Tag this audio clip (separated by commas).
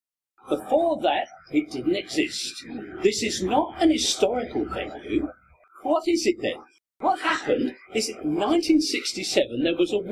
Speech